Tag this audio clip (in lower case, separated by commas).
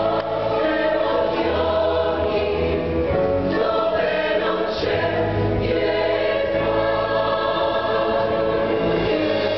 music, choir